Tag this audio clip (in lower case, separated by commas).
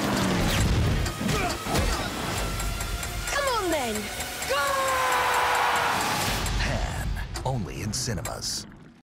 music, speech